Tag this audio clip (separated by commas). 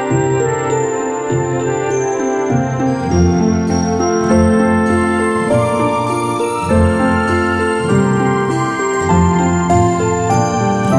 Music